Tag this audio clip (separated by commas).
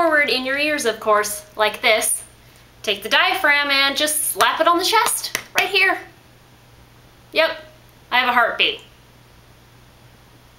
Speech